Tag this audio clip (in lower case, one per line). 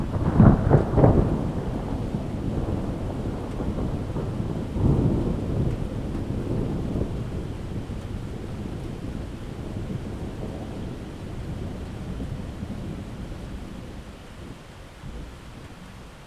thunderstorm
water
thunder
rain